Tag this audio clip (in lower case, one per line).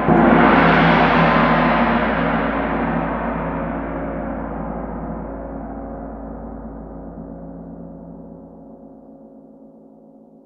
playing gong